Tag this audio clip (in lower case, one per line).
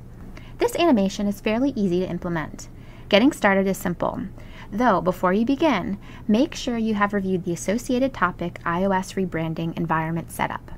speech